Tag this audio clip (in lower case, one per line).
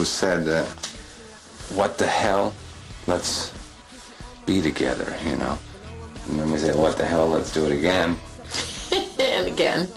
speech
music
inside a small room